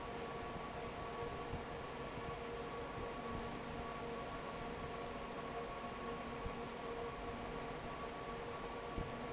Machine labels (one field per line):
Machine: fan